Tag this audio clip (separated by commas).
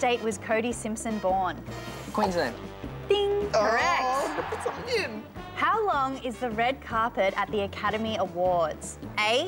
Music, Speech